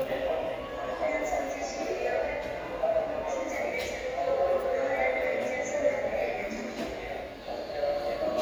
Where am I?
in a subway station